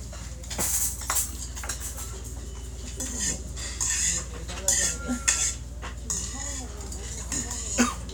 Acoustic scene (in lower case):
restaurant